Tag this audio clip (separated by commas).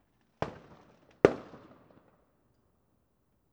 Fireworks, Explosion